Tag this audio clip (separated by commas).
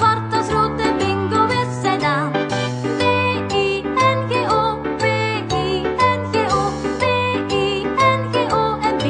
Music, Music for children